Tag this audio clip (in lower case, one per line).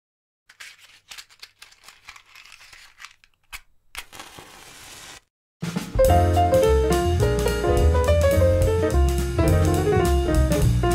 music